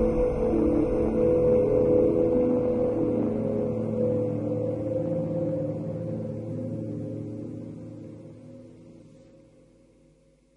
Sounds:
soundtrack music, music

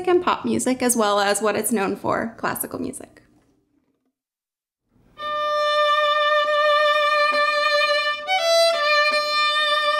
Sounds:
musical instrument, music, speech, fiddle

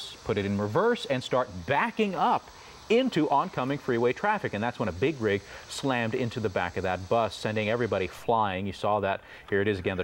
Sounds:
speech

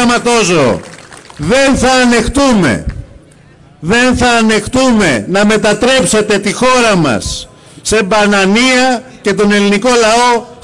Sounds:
speech, monologue, man speaking

